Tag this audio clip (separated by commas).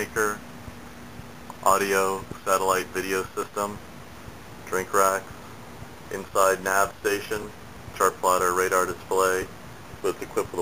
Speech